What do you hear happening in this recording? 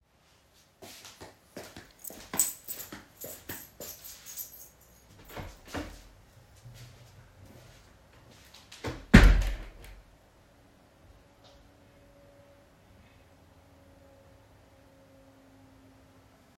I walked to the door of my bedroom, holding my keychain. Then I opened the door, went to the other side of it and closed it.